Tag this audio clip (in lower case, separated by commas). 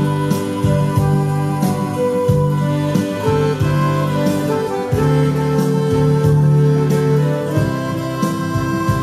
music